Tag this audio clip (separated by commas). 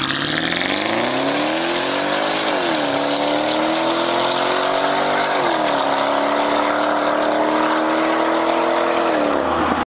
Rustle